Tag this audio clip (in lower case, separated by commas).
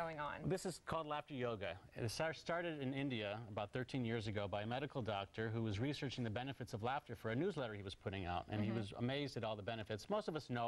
speech